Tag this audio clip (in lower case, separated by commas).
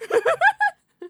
human voice, laughter